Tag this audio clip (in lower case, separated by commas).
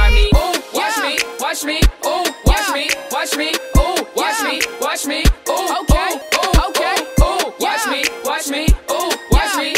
music